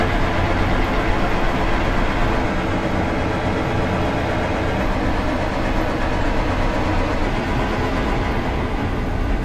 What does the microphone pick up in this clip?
large-sounding engine